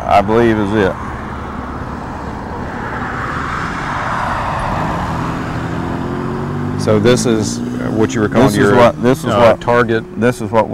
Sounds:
speech
outside, rural or natural

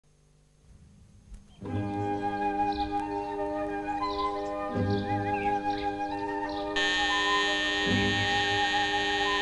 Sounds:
alarm
music
inside a small room

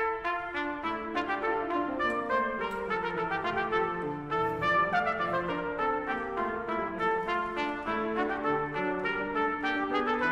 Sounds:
music

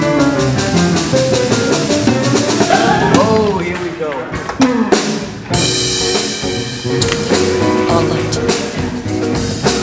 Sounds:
speech
music
field recording

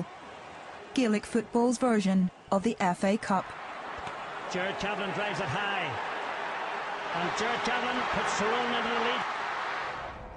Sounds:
speech

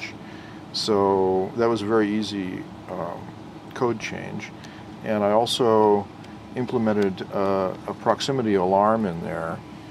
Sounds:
speech

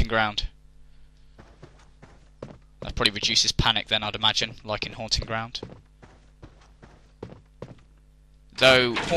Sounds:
speech

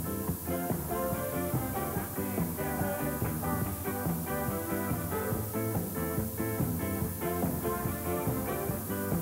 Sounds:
jazz
music
singing

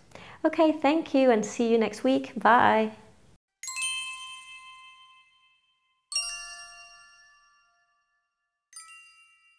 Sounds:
ding
music
speech

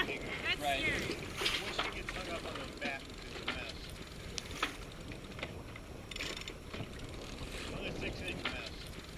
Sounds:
speech

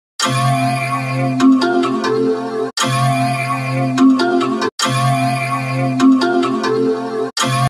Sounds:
music

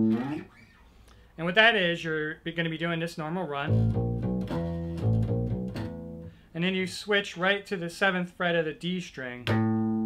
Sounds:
music
plucked string instrument
guitar
speech
inside a small room
musical instrument

